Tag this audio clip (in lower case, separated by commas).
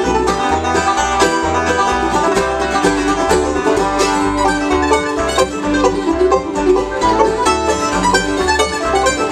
bluegrass, music